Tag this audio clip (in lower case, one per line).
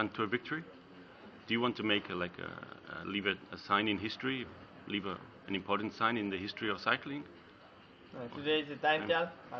speech